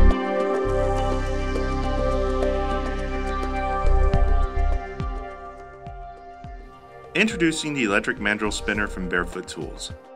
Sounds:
Music, Speech

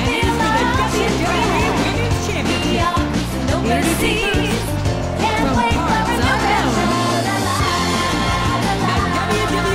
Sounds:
Speech, Music

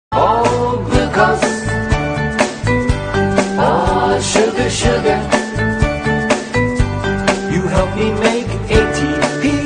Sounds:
Music

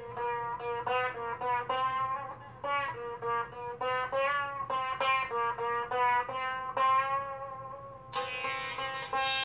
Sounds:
Music

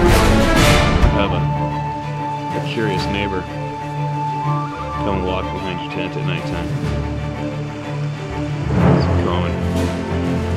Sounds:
Music, Speech

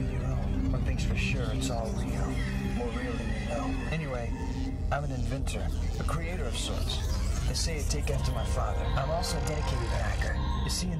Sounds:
Music, Speech

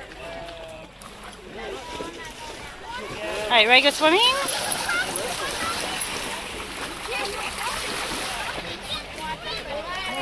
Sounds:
splatter, Speech, Animal, splashing water, Domestic animals, Dog

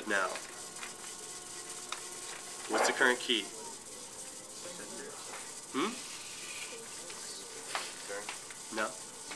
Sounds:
Speech

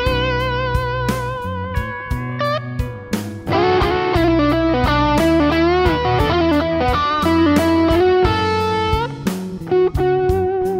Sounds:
Musical instrument, Plucked string instrument, Guitar, Music, Strum

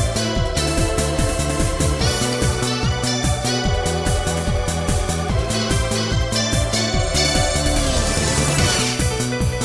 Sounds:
Music

